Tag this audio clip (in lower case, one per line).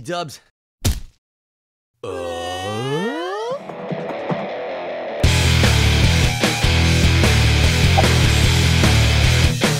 speech
music